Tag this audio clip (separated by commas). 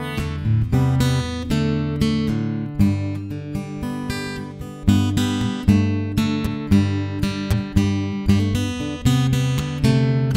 Acoustic guitar, Strum, Musical instrument, Music, Plucked string instrument, Guitar